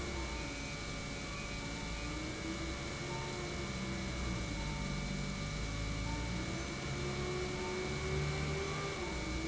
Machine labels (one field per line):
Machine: pump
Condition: normal